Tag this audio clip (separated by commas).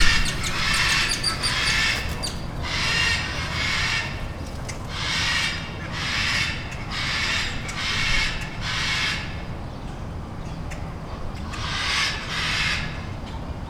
Bird, Animal, Wild animals, bird call